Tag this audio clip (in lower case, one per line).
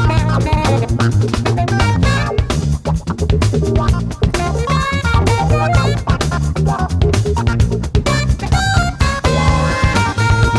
music